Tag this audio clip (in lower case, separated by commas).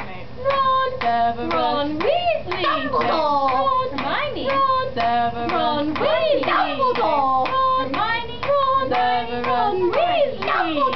music